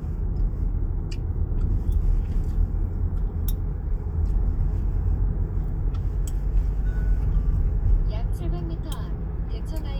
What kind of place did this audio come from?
car